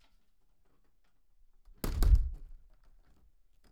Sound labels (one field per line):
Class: window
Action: closing